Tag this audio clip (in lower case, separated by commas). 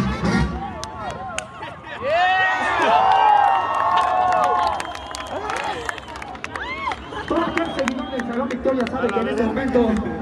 music, speech